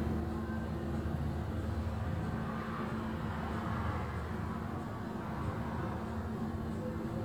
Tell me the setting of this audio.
bus